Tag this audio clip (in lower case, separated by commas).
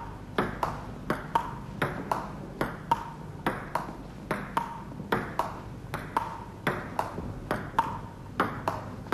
ping